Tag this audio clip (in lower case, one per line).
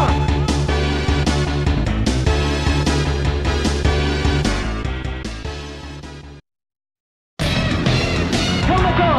music
speech